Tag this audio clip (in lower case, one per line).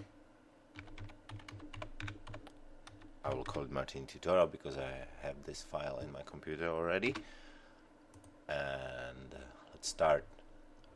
speech